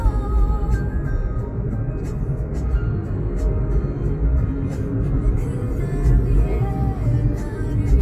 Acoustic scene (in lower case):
car